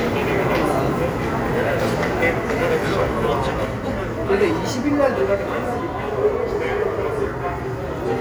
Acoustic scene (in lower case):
subway station